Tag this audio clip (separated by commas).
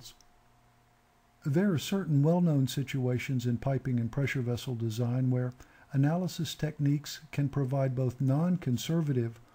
Speech